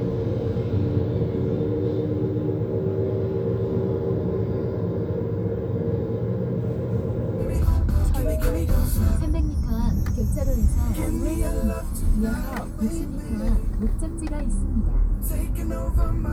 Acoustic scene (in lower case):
car